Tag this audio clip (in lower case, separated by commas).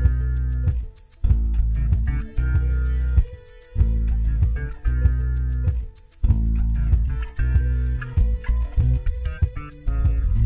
flamenco, music